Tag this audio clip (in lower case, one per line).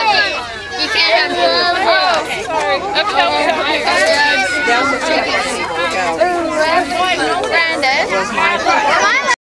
speech